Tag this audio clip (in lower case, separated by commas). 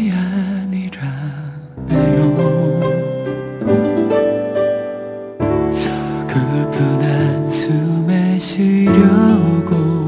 tender music, music